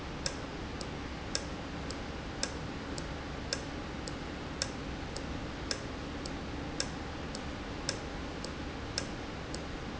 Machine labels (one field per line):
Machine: valve